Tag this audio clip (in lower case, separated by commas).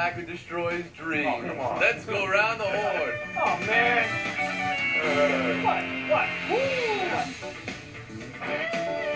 theme music, music, speech